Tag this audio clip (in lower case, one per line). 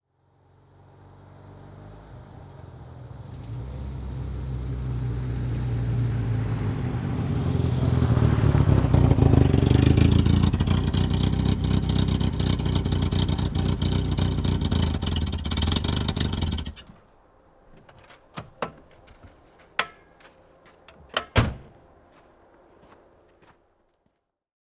vehicle
motor vehicle (road)